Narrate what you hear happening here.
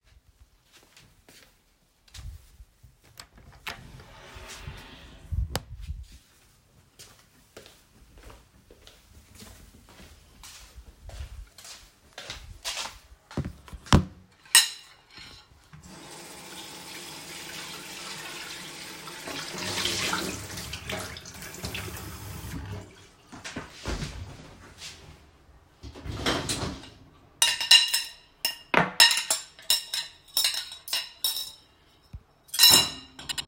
I walked to the kitchen and opened the door. I turned on the tap and washed the dishes, then loaded them into the dishwasher.